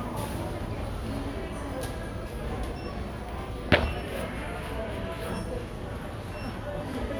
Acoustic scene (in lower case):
crowded indoor space